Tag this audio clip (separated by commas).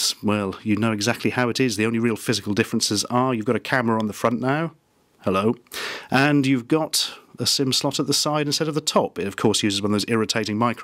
Speech